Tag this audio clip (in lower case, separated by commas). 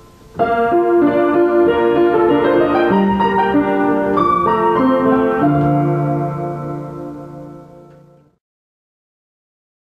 music